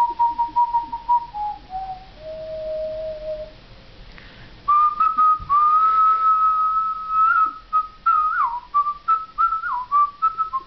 A person whistling a tune